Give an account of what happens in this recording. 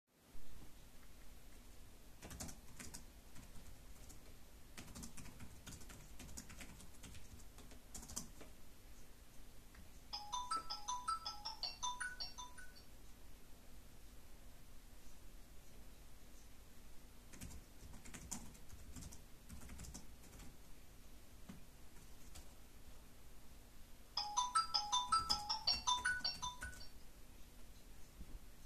I keyboard type, the phone ring, I closed it and continued typing, the phone ring again